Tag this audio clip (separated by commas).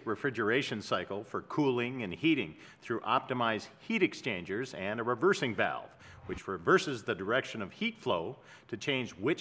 Speech